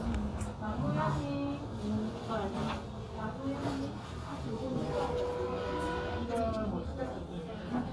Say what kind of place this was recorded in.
crowded indoor space